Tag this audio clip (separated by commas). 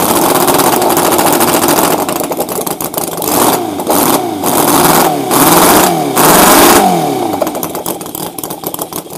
vroom, Engine